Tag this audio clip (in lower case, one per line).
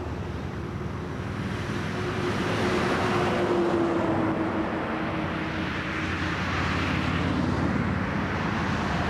outside, urban or man-made